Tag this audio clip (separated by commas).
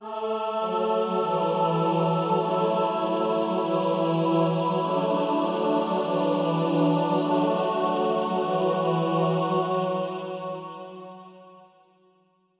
Music, Musical instrument, Human voice, Singing